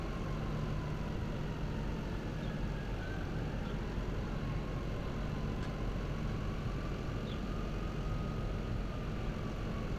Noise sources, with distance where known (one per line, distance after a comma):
engine of unclear size
siren, far